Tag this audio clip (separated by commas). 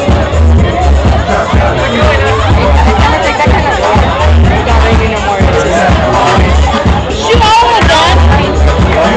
Music, Speech